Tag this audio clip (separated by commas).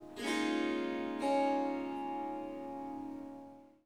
Music, Musical instrument, Harp